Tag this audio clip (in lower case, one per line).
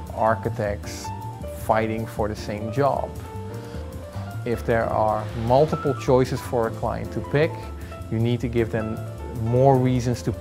speech
music